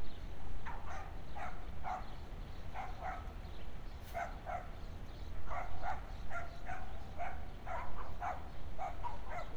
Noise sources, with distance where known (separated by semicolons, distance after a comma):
dog barking or whining